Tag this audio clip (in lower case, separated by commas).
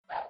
whoosh